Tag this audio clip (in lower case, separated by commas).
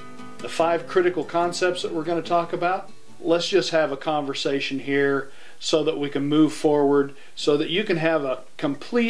music, speech